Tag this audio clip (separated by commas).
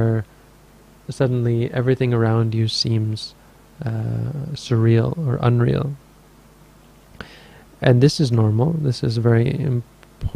Speech